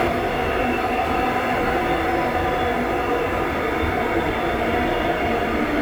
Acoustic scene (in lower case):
subway train